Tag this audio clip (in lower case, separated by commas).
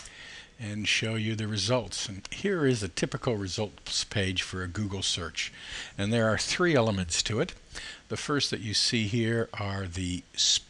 speech